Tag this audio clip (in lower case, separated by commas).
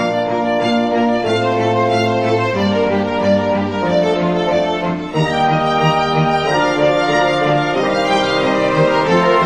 music